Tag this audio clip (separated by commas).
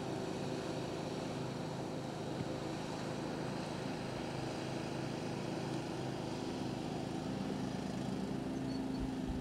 Vehicle